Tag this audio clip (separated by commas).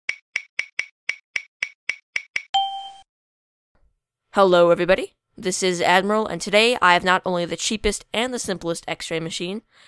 Chink, Speech